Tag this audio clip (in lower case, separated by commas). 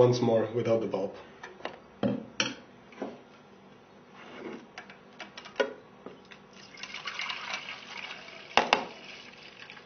speech